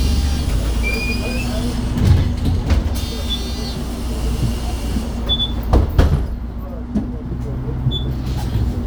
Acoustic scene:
bus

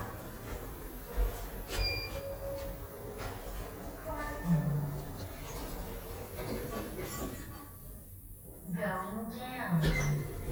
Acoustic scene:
elevator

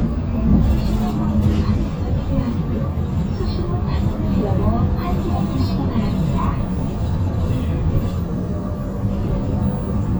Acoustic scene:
bus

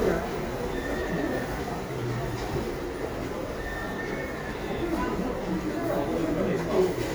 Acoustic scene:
crowded indoor space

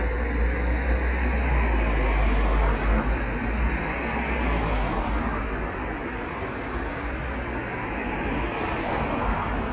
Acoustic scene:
street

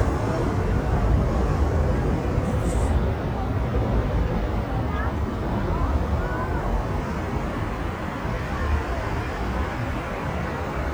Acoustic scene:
street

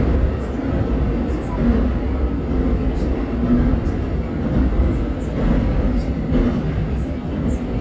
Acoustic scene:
subway train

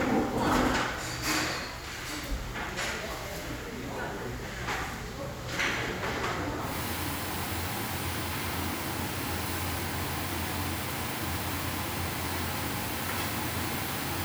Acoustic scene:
restaurant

